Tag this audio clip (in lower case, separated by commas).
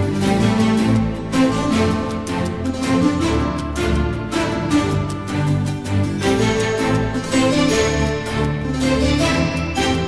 theme music, music, middle eastern music, soundtrack music